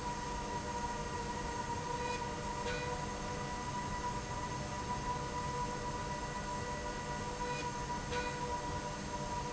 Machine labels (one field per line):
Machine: slide rail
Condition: normal